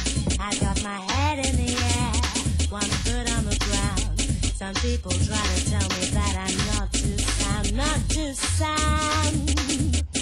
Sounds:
music

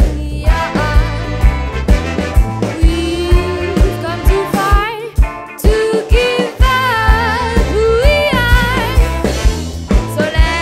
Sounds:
music, rhythm and blues

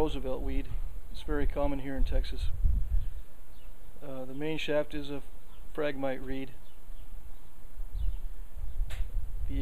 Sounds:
speech

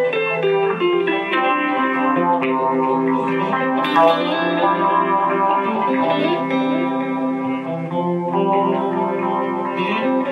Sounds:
music

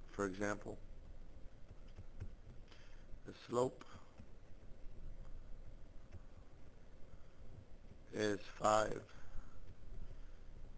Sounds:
speech

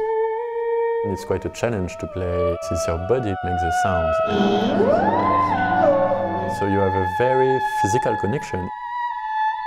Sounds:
playing theremin

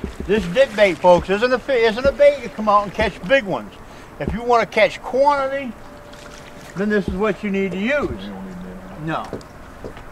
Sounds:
outside, rural or natural, speech

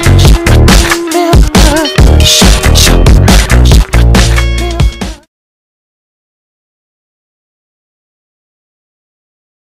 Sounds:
music

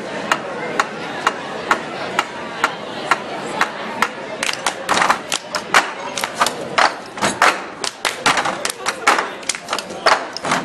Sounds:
speech, crowd, thump

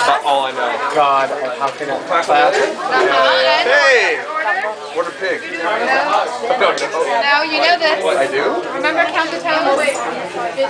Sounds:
speech

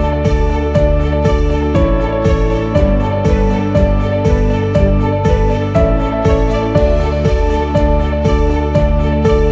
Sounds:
music

